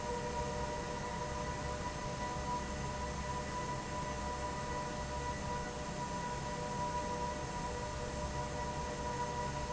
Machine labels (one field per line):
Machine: fan